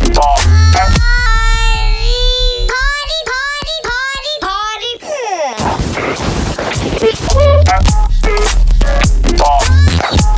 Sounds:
Music

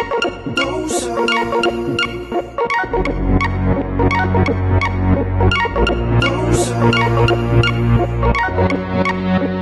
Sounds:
Music, Electronic music

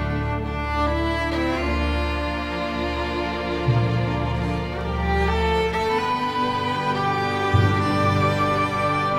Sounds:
Music

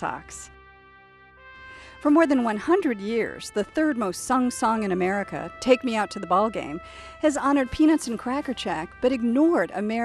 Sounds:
Speech, Music

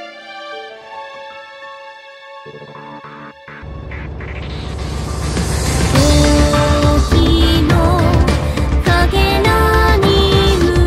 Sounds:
Music

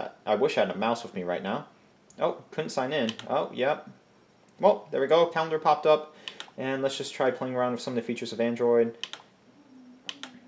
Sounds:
Computer keyboard, Speech

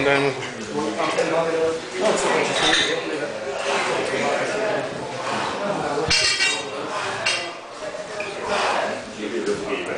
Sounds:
Speech

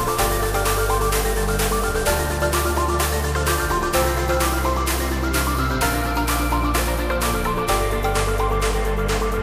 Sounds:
Music

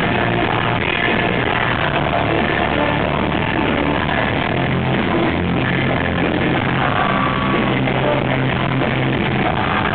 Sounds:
Music

